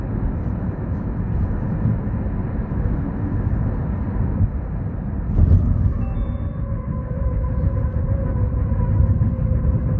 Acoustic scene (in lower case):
car